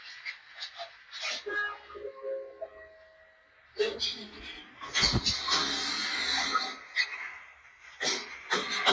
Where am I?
in an elevator